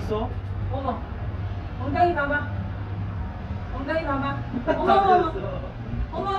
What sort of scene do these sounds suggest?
residential area